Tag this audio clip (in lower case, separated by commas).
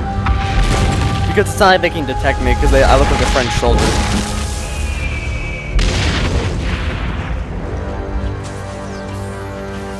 boom, music, speech